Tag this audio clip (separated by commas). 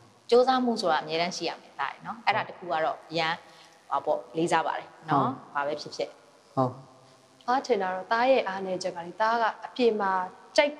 Speech, Conversation